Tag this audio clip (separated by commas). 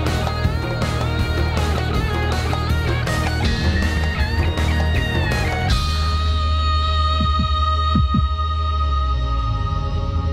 Music